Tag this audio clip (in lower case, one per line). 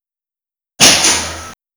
tools